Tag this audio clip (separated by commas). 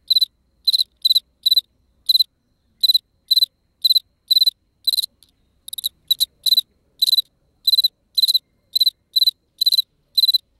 cricket chirping